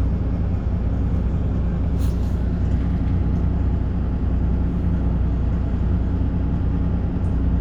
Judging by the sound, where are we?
on a bus